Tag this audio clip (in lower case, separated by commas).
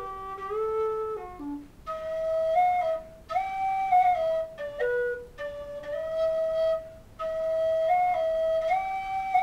music